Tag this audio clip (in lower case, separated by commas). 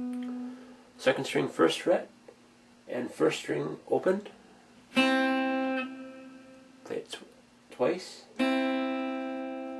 musical instrument, guitar, music, speech, plucked string instrument